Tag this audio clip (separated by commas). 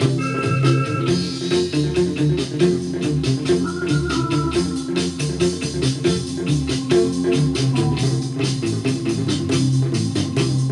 Guitar, Music, Strum, Musical instrument, Plucked string instrument